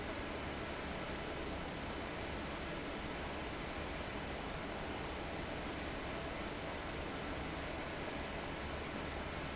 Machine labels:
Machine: fan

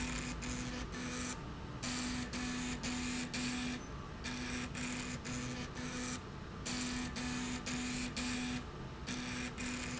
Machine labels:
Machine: slide rail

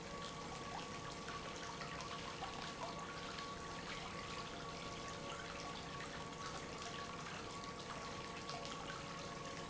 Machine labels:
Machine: pump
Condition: normal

